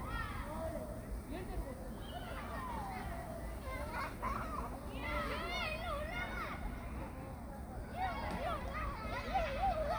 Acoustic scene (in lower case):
park